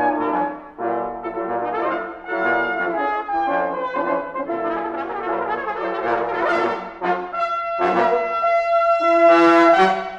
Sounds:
Trombone, Brass instrument, Trumpet

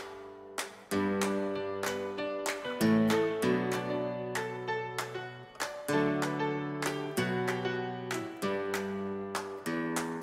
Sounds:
Music

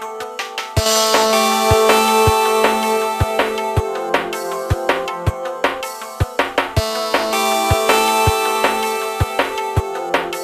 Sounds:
Music

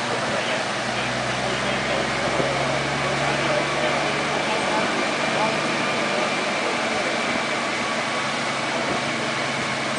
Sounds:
Car, Speech, outside, rural or natural, Vehicle

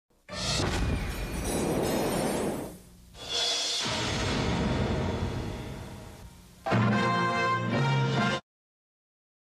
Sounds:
Music, Television

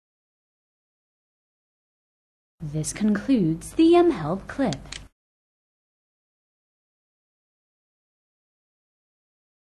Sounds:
Speech

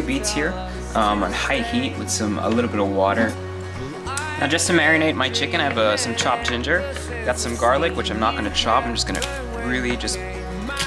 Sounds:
Speech, Music

